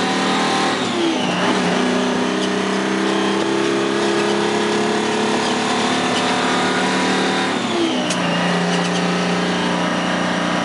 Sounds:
vehicle, truck

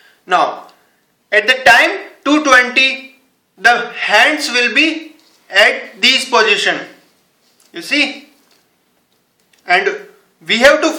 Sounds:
speech

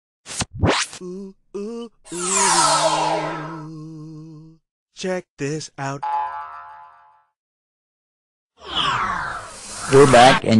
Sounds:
music, speech

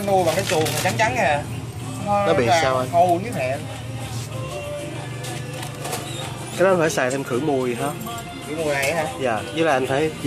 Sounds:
speech, music

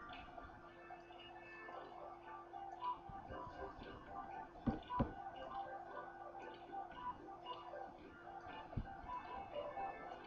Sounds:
tick

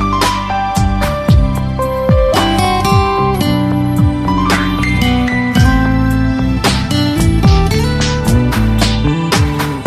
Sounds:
new-age music, music

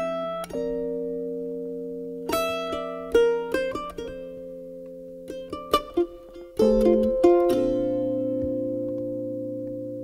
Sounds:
pizzicato, musical instrument, music

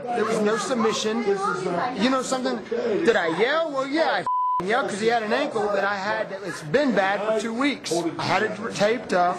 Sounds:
speech

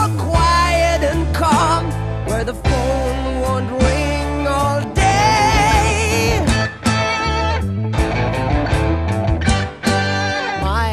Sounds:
music

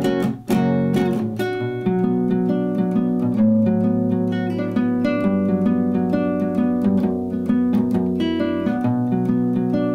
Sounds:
guitar, music, electric guitar, musical instrument, strum, plucked string instrument, acoustic guitar

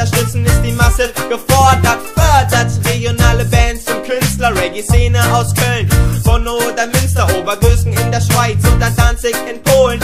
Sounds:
music, reggae

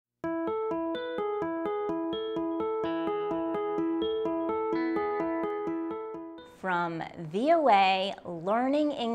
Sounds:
electric piano, speech

